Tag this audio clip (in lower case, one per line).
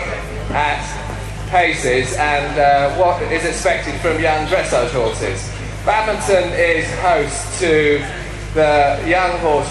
speech